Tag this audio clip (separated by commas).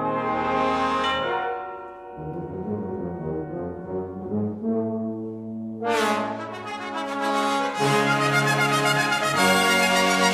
Brass instrument, Music